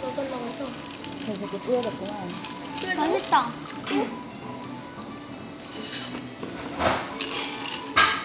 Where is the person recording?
in a cafe